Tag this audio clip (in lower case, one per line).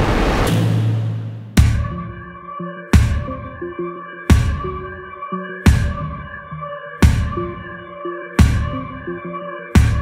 soundtrack music
music